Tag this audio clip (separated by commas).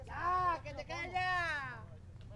Shout, Human voice, Speech, Male speech, Yell